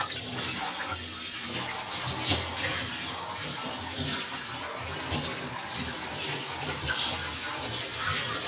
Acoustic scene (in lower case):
kitchen